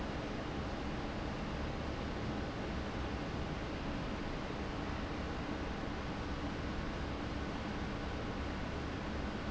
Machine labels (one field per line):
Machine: fan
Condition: abnormal